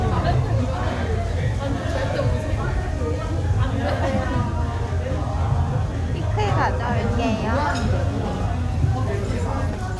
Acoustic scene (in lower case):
restaurant